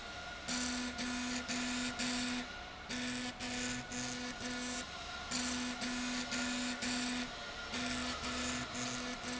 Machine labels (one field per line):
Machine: slide rail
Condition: abnormal